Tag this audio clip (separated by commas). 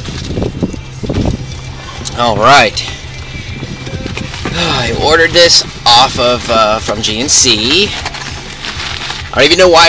Speech